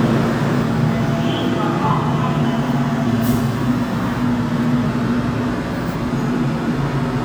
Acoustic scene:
subway station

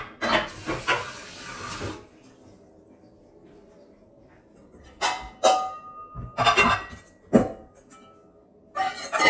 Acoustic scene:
kitchen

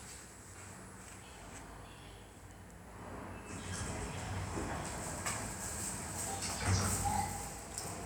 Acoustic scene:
elevator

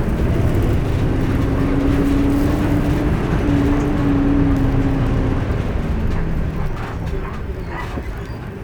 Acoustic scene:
bus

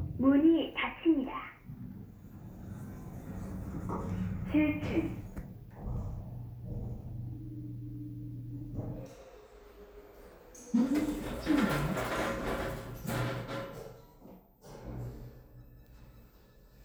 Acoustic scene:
elevator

